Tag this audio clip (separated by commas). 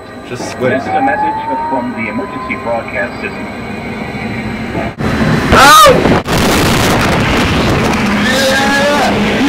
Speech, Vehicle